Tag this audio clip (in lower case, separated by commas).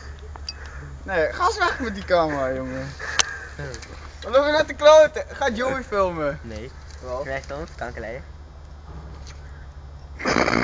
speech